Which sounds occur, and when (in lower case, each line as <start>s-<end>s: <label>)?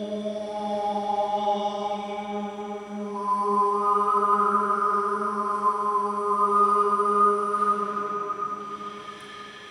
0.0s-9.7s: chant
0.0s-9.7s: mechanisms
0.0s-9.7s: music
8.6s-9.7s: breathing